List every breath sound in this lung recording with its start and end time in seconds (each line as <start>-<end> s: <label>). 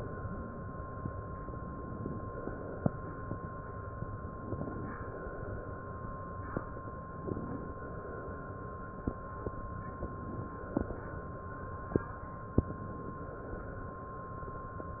4.23-4.93 s: inhalation
7.13-7.84 s: inhalation